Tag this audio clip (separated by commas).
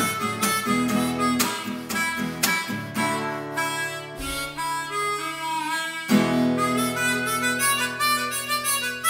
Musical instrument, Harmonica, Music, Plucked string instrument, Guitar, Acoustic guitar